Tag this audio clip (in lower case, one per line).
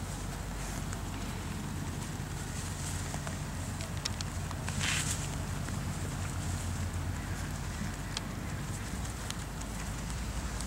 outside, rural or natural